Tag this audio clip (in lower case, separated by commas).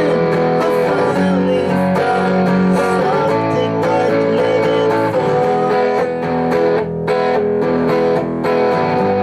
guitar, music, strum, bass guitar, plucked string instrument, electric guitar, musical instrument